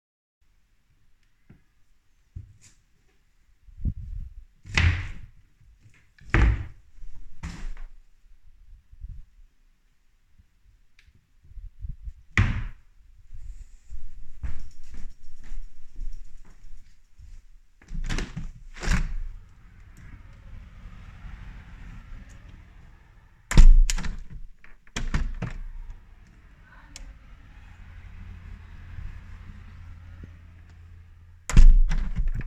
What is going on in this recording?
i open all the drawers door than i close them and then walk to the window and open it